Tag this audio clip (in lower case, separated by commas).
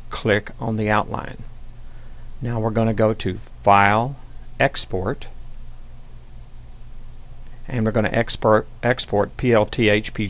speech